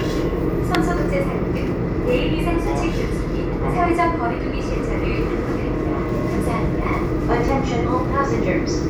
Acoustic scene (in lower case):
subway train